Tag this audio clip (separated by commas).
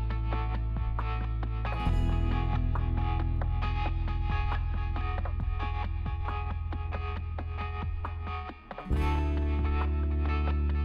Music